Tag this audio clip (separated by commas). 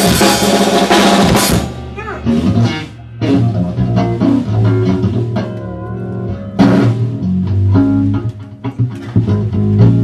Percussion, Drum kit, Drum roll, Snare drum, Drum, Rimshot, Bass drum